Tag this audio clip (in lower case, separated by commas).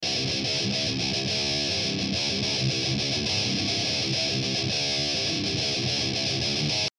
musical instrument, guitar, music, plucked string instrument